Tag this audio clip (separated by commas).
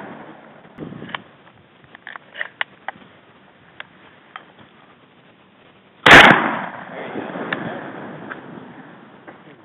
Speech